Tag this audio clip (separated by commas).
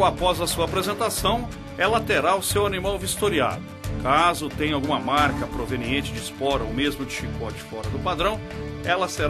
Music, Speech